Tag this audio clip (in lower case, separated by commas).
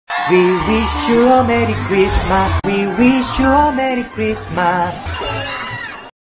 male singing, music